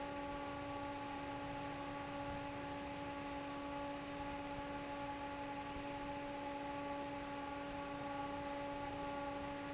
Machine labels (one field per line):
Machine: fan